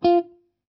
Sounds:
musical instrument, guitar, plucked string instrument, music

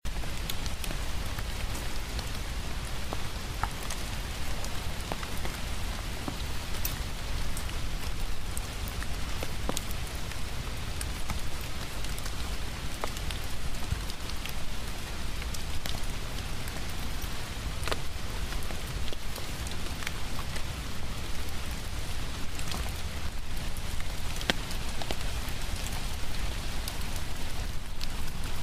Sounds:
rain, water

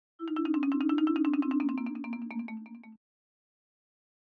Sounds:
mallet percussion, musical instrument, percussion, marimba, music

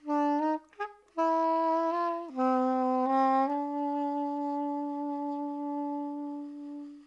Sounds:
music, woodwind instrument, musical instrument

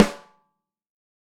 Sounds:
musical instrument, drum, snare drum, percussion, music

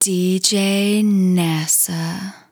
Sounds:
speech, female speech, human voice

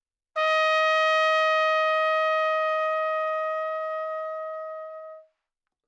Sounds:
trumpet, musical instrument, music, brass instrument

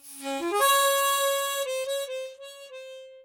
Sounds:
harmonica, music, musical instrument

